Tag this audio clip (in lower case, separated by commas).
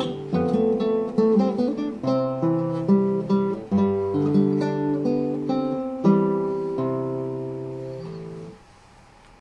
musical instrument, music, acoustic guitar, plucked string instrument, strum, guitar